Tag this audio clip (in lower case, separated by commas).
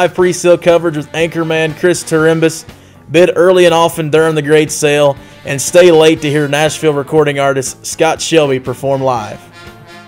speech, music